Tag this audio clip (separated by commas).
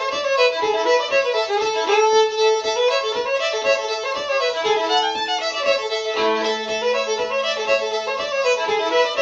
Violin, Music, Musical instrument